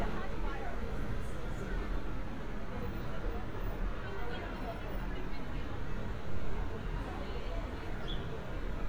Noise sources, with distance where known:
person or small group talking, near

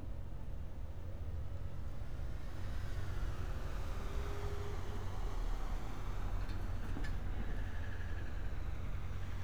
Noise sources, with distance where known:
engine of unclear size, far

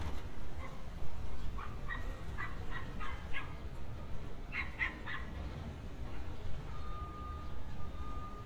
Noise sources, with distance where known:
reverse beeper, near
dog barking or whining, near

